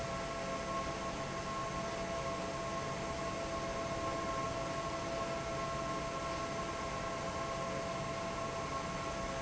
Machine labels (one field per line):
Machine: fan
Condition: normal